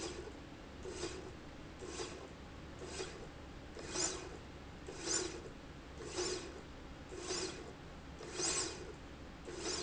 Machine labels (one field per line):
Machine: slide rail